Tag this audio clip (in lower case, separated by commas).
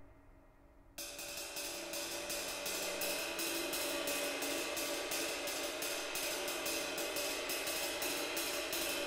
music, roll